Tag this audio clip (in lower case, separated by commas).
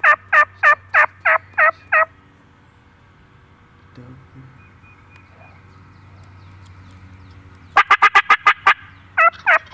turkey gobbling